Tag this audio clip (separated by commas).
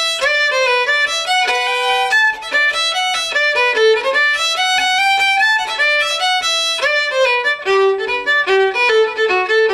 fiddle, Music, Musical instrument